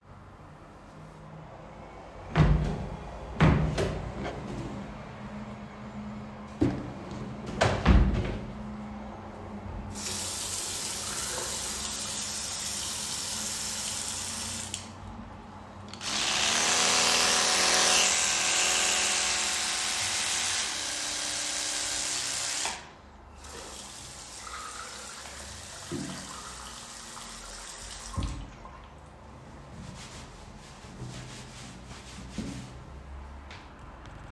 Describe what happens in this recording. I opened the drawer to take my toothbrush. I then turned on the running water and cleaned the toothbrush. After brushing my teeth, I washed my hands and dried them with a towel.